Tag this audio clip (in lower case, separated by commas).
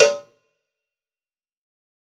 bell, cowbell